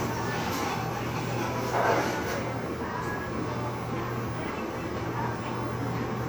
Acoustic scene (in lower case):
cafe